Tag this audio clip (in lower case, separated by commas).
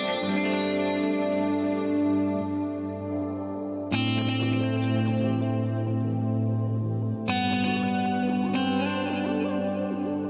strum, guitar, plucked string instrument, musical instrument, music